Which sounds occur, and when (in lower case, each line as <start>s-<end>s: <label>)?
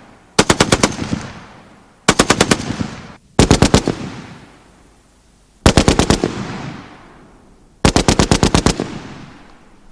0.0s-9.9s: background noise
0.4s-1.7s: machine gun
2.1s-3.2s: machine gun
3.4s-4.6s: machine gun
5.7s-7.3s: machine gun
7.0s-7.2s: tick
7.9s-9.4s: machine gun
9.5s-9.6s: tick